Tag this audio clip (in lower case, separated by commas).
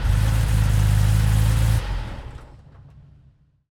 vehicle, car, engine, motor vehicle (road)